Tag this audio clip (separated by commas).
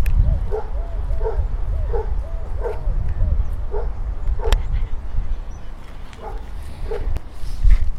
Animal, pets, Dog, Bark